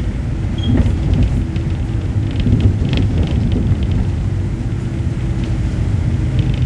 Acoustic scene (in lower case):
bus